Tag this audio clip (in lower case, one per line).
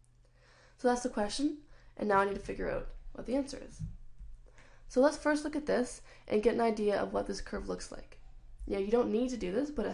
speech